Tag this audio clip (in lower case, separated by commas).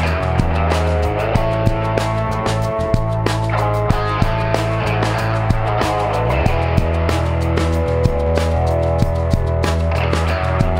music